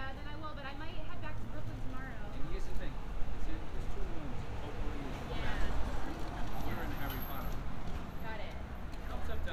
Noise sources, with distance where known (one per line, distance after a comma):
person or small group talking, near